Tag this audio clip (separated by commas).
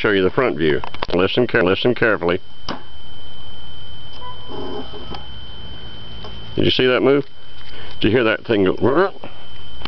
Speech